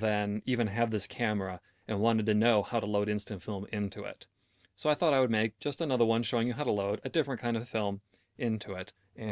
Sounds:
speech

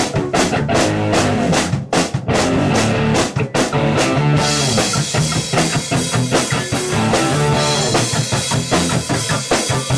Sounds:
music
blues

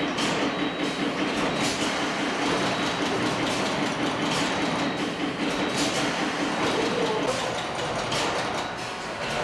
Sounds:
speech

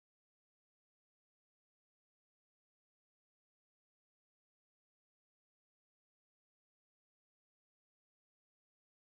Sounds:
music

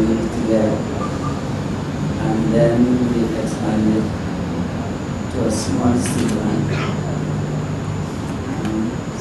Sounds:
male speech
speech
monologue

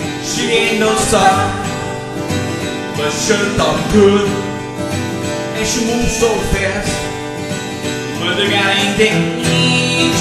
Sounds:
musical instrument
strum
plucked string instrument
guitar
music

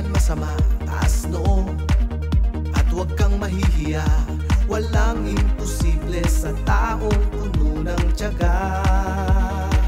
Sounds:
music
jingle (music)

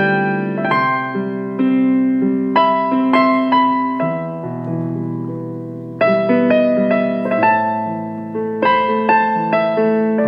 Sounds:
music

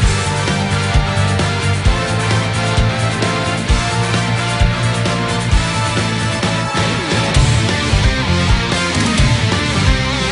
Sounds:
soundtrack music
music

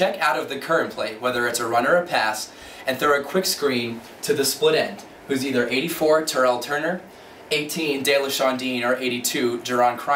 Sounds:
speech

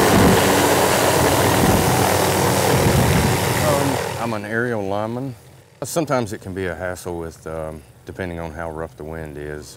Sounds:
speech
vehicle
helicopter

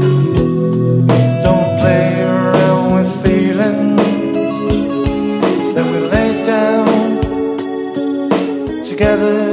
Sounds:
music

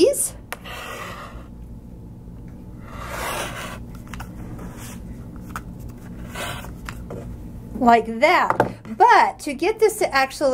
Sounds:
speech

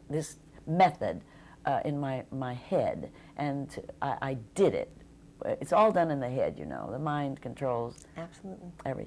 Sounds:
speech
inside a small room

